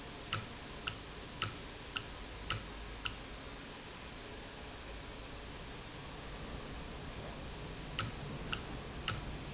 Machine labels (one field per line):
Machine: valve